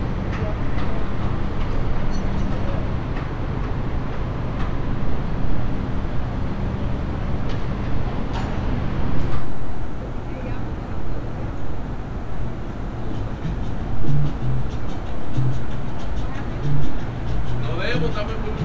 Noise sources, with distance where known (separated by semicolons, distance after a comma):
person or small group talking